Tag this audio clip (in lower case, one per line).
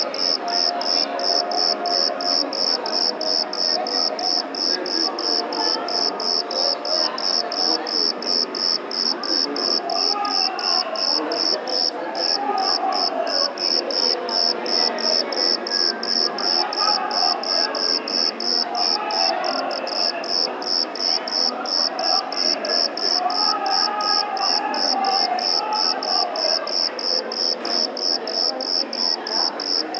animal
wild animals
insect
cricket